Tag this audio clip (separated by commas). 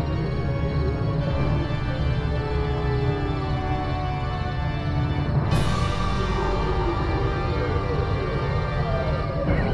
Music, Scary music